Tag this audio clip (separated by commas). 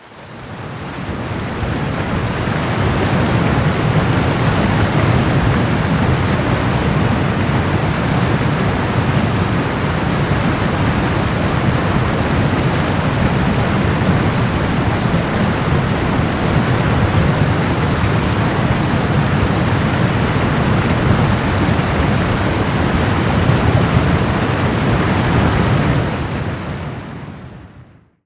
Stream, Water